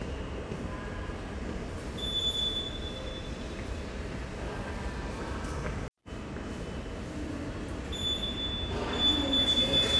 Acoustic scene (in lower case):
subway station